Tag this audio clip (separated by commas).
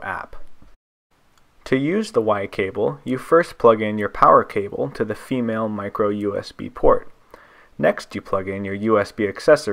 Speech